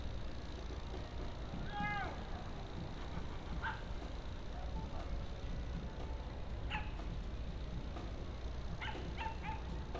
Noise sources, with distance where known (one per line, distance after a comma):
dog barking or whining, far